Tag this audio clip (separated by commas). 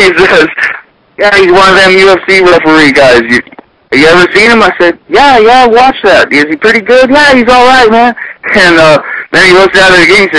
Speech